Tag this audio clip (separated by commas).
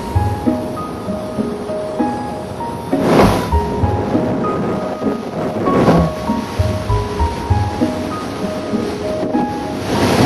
Music